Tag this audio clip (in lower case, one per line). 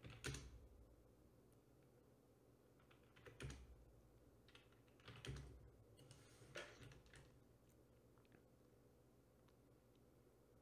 silence